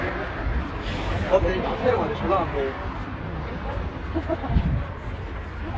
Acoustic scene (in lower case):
street